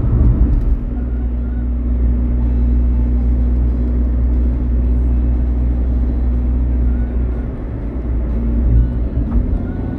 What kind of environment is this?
car